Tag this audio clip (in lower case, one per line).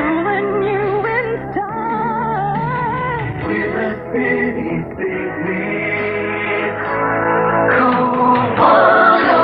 music